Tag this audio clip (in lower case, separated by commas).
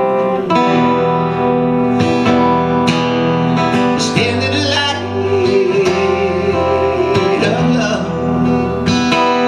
music, male singing